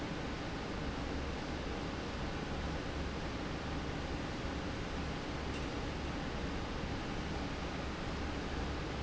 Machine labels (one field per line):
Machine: fan